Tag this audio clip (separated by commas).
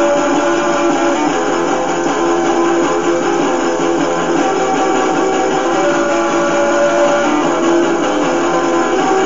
Plucked string instrument, Acoustic guitar, Guitar, Music, Musical instrument